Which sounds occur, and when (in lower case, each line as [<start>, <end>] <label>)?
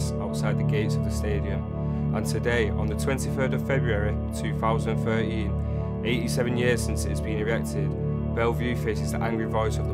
[0.00, 9.93] music
[0.17, 1.62] male speech
[2.09, 4.13] male speech
[4.30, 5.45] male speech
[6.02, 7.90] male speech
[8.32, 9.80] male speech